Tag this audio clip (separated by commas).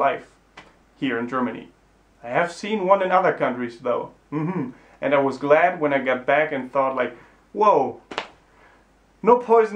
inside a small room, Speech